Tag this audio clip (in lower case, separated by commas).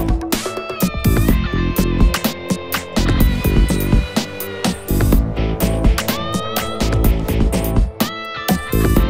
music